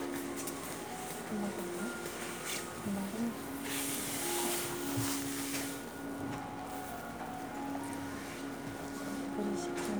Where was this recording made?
in a crowded indoor space